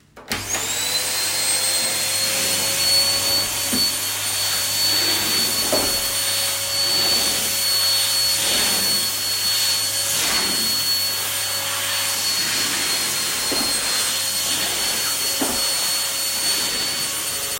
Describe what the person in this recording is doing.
I turned on the vacuum cleaner and vacuumed the floor.